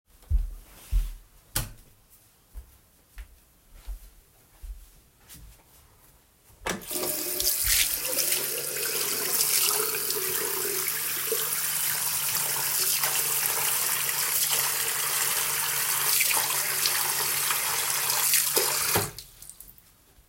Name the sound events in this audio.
footsteps, running water